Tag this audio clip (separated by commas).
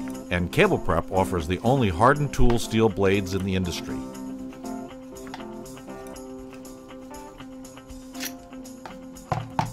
Music, Speech